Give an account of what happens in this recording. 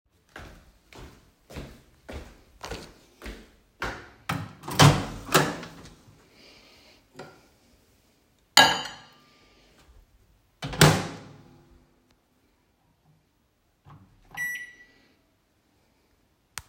I walked into the kitchen with audible footsteps. I opened the microwave door and placed a plate inside with a clatter. I closed the microwave door and pressed the button to start it.